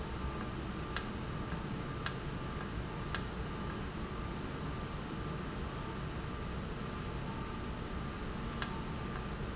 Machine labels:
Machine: valve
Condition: normal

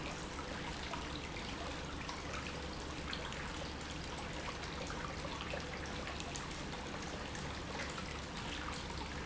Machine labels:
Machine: pump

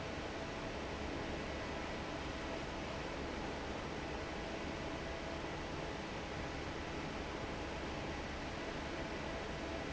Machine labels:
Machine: fan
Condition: normal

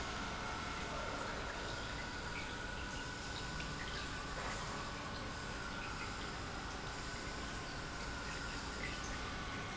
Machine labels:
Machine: pump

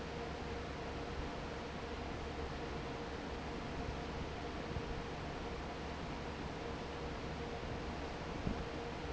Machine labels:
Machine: fan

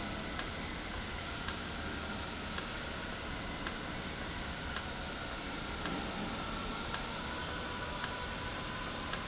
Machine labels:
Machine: valve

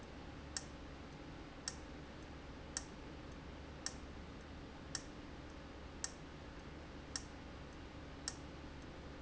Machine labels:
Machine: valve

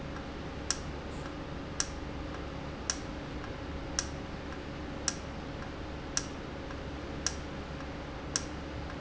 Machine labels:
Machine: valve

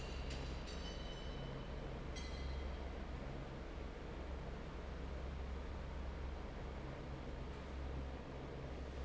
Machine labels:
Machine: fan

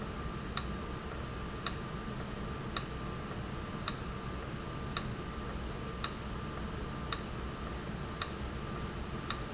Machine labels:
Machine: valve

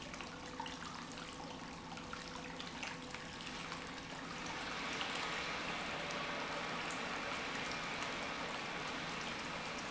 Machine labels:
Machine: pump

